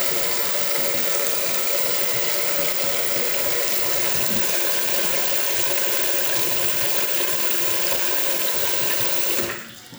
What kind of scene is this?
restroom